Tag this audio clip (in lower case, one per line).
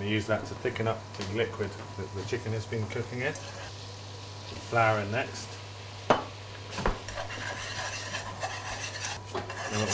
stir